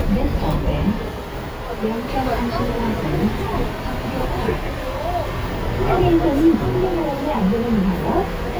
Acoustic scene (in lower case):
bus